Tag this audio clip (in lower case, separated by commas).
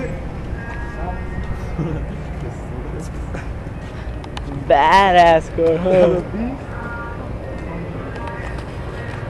motor vehicle (road), vehicle, speech